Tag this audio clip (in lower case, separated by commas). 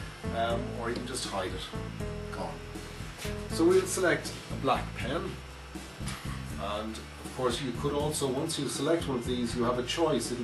speech, music